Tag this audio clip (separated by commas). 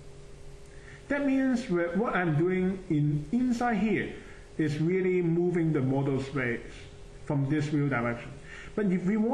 Speech, inside a small room